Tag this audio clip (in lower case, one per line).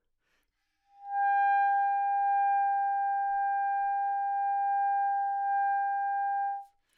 music
musical instrument
woodwind instrument